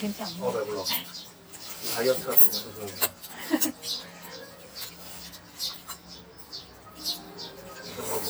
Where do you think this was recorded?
in a restaurant